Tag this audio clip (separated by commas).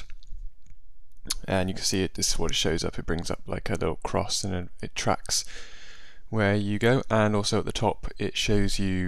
Speech